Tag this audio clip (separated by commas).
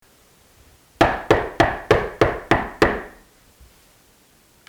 Knock, Domestic sounds, Door